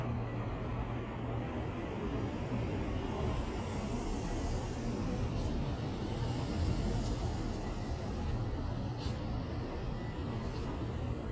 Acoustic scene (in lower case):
street